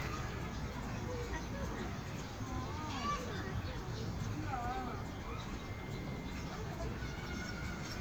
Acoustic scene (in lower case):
park